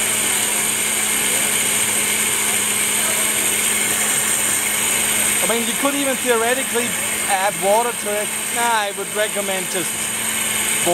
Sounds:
Blender

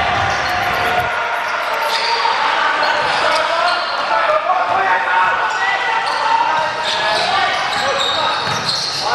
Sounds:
basketball bounce

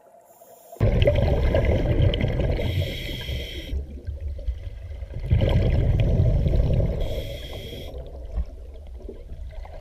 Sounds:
scuba diving

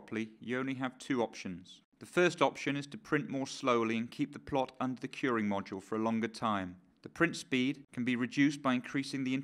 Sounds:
Speech

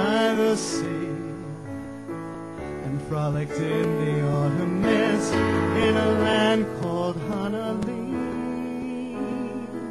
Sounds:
Music

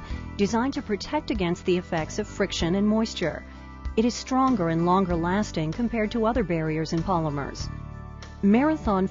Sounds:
Music, Speech

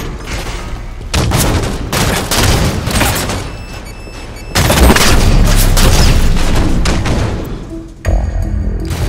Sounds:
inside a large room or hall, Music

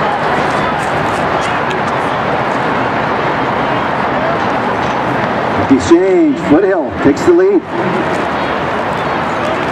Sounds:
Speech, outside, urban or man-made

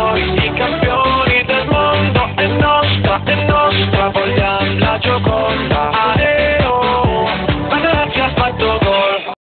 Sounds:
Music

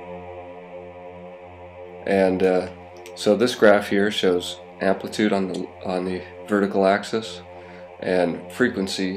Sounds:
Speech

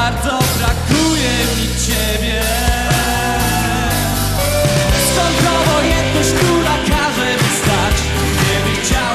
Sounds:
Music

